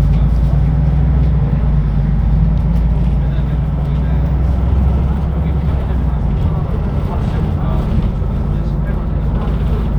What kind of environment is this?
bus